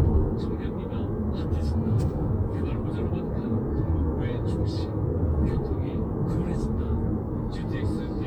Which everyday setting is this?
car